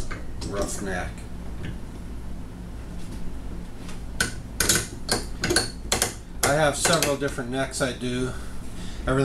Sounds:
wood
speech

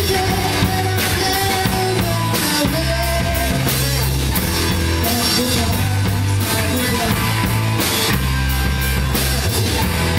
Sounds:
music

